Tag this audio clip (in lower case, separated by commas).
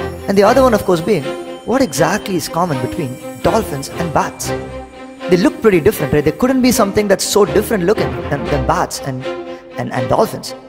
music, speech